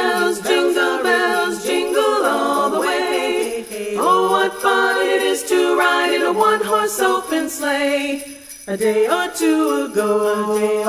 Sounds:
jingle

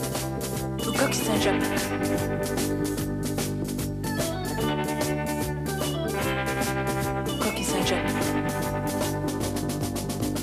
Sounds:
speech
music

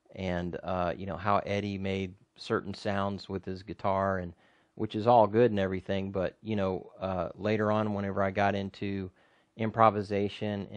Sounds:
speech

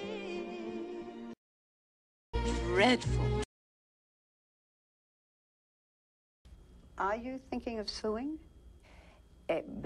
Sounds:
speech
music

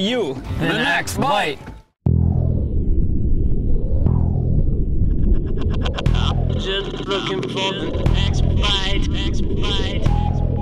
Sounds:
music
speech

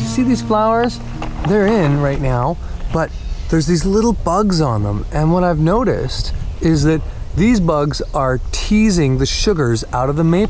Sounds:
music
speech

